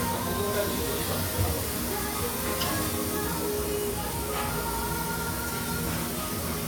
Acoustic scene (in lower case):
restaurant